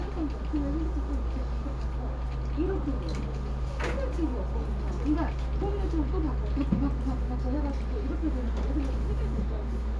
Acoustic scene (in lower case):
crowded indoor space